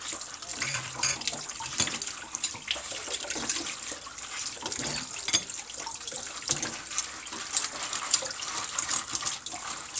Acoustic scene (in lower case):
kitchen